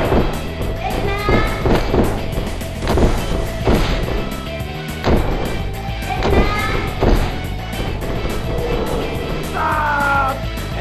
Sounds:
Speech, Music

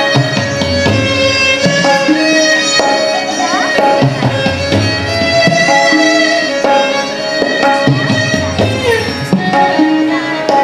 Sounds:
Percussion, Tabla

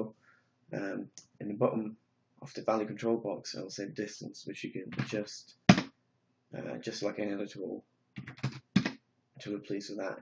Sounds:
Speech

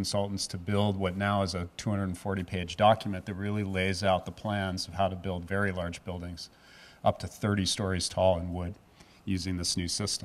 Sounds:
Speech

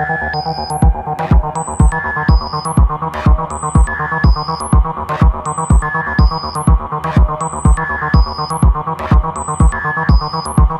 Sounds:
Music

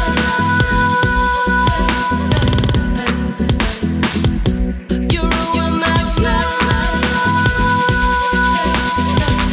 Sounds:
Dubstep, Electronic music, Music

